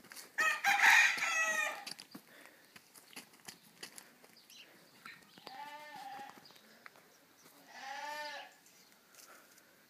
A rooster crowing followed by rustling and distant baaing